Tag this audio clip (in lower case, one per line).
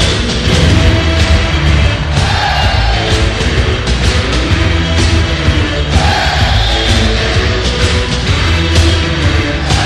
music